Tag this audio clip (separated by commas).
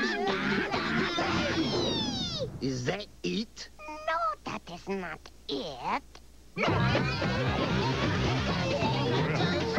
Speech, Music